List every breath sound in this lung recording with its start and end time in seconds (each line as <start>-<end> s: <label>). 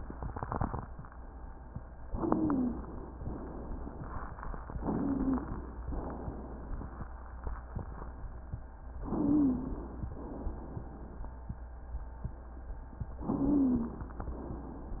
2.07-3.11 s: inhalation
2.13-2.71 s: wheeze
3.09-4.60 s: exhalation
4.76-5.80 s: inhalation
4.90-5.42 s: wheeze
5.82-7.07 s: exhalation
9.04-10.08 s: inhalation
9.07-9.80 s: wheeze
10.10-11.35 s: exhalation
13.19-14.24 s: inhalation
13.27-13.99 s: wheeze
14.26-15.00 s: exhalation